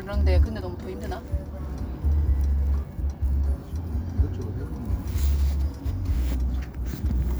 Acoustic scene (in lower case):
car